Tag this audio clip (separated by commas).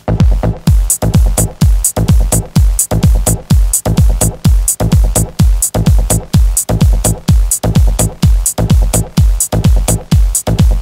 Music